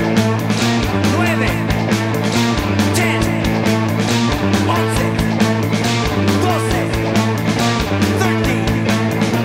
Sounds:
Music

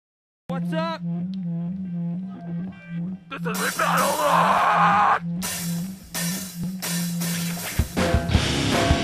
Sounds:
Music, Speech, inside a large room or hall

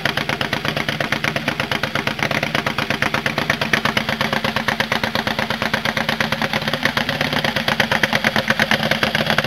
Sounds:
Engine, Motorcycle, Engine knocking, Vehicle

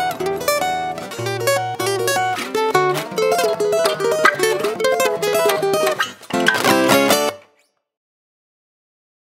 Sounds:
Bass guitar, Electric guitar, Acoustic guitar, Plucked string instrument, Music, Strum, Guitar, Musical instrument

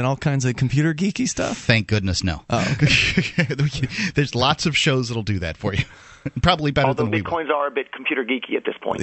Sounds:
Speech

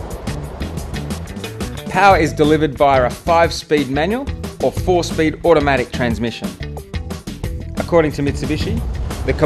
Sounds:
Speech, Motor vehicle (road), Car, Car passing by, Vehicle, Music

